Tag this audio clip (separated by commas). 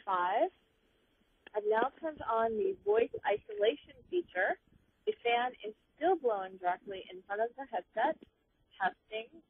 Speech